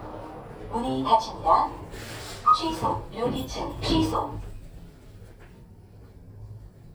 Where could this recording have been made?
in an elevator